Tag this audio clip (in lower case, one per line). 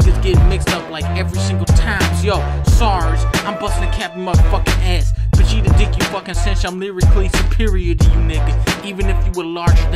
rapping